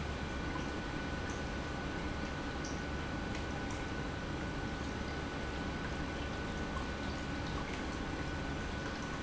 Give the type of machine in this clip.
pump